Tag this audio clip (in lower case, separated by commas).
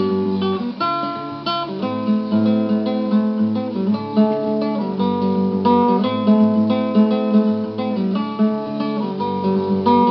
music, rustling leaves